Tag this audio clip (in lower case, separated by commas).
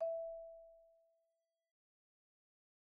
musical instrument, music, percussion, xylophone, mallet percussion